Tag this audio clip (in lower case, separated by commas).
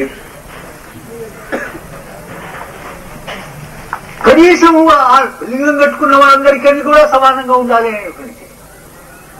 man speaking, speech, monologue